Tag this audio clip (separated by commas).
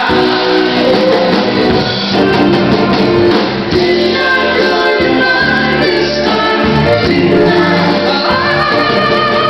Choir, Male singing, Music